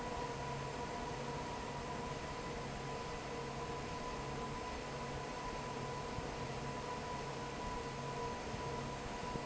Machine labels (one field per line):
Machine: fan